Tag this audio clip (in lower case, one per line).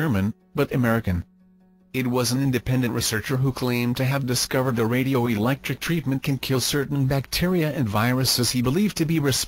speech